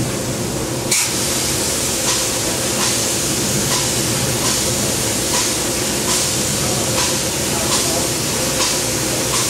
A loud spraying noise